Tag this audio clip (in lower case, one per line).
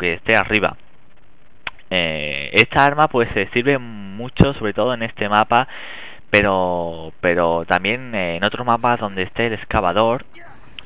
speech